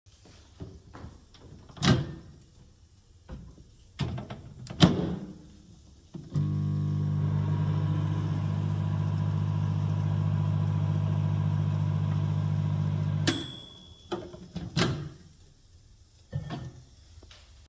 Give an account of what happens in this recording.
I walked to the microwave, opened the door, put the food inside, closed the door, started the microwave, waited until the food was heated, and then took the food out.